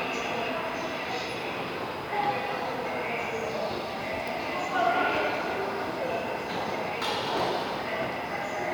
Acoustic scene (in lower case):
subway station